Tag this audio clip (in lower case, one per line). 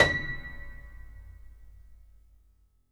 piano
music
musical instrument
keyboard (musical)